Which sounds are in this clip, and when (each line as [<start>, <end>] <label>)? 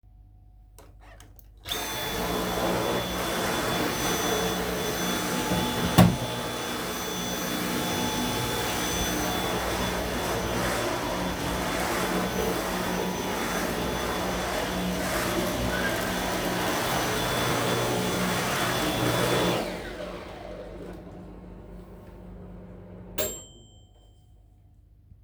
[1.58, 21.45] vacuum cleaner
[5.90, 24.37] microwave